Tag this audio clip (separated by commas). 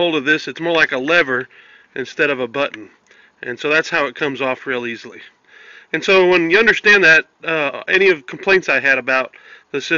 Speech